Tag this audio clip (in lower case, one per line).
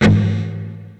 electric guitar
guitar
music
plucked string instrument
musical instrument